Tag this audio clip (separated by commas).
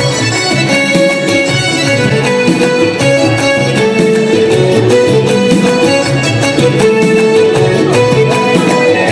Music, Traditional music